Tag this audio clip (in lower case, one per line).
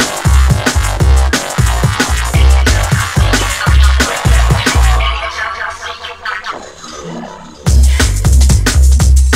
music